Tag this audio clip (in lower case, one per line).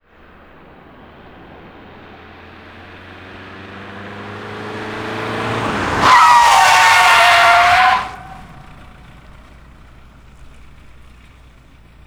car
vehicle
engine
motor vehicle (road)